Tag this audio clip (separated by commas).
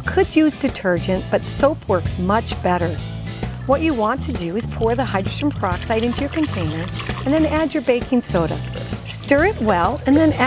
Speech, Music